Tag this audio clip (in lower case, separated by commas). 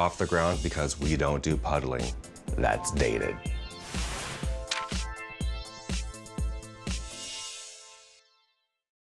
speech, music